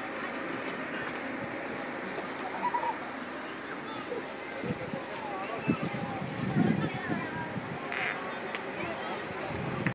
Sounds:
speech

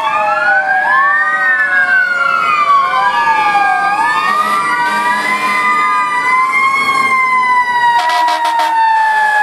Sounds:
emergency vehicle
truck
motor vehicle (road)
fire truck (siren)
vehicle

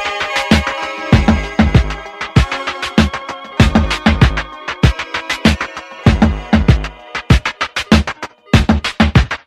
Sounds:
music

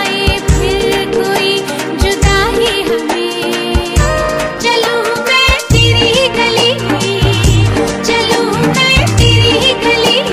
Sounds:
music
music of bollywood

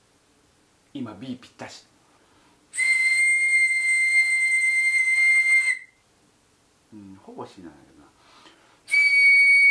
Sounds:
whistle

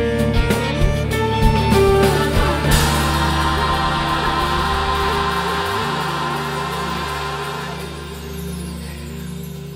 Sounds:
music

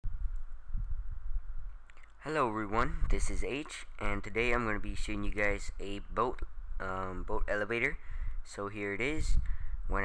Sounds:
speech

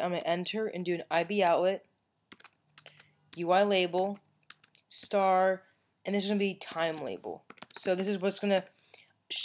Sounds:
speech

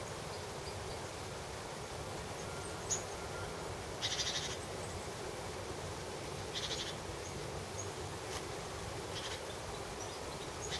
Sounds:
bird

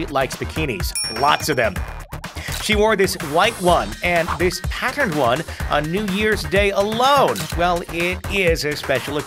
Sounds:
speech
music

